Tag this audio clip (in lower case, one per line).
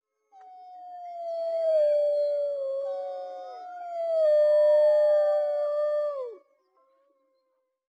dog
domestic animals
animal